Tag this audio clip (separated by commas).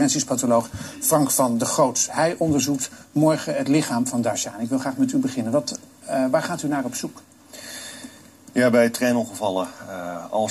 Speech